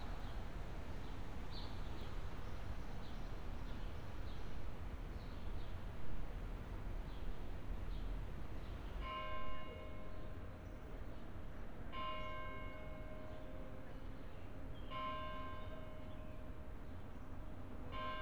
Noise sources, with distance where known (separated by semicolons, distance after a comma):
background noise